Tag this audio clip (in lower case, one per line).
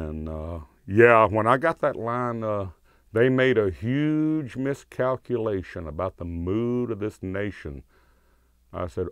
speech